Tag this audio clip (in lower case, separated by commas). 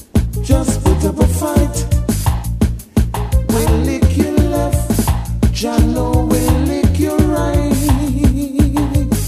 rustle, music